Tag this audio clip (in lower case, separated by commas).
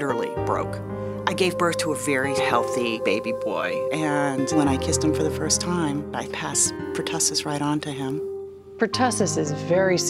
music, speech